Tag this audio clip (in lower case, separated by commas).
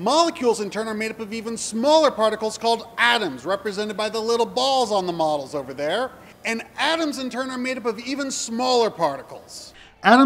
speech